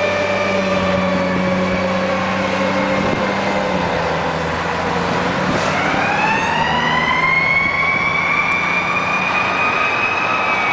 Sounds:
engine
vroom
medium engine (mid frequency)
car
vehicle

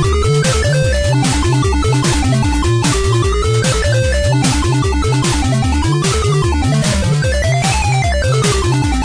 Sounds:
music
video game music

